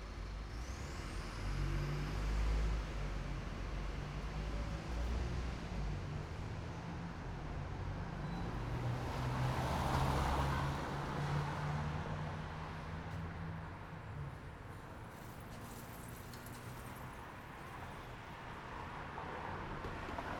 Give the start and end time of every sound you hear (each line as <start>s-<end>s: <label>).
0.0s-0.4s: bus engine idling
0.0s-6.3s: bus
0.4s-6.3s: bus engine accelerating
7.6s-14.4s: car
7.6s-14.4s: car wheels rolling